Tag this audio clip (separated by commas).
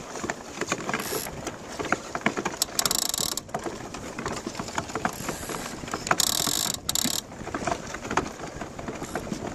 Vehicle, Water vehicle